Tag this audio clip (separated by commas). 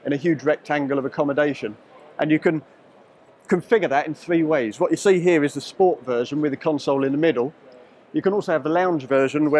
Speech